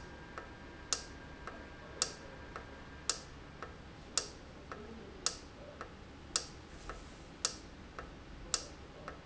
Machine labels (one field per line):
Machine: valve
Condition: normal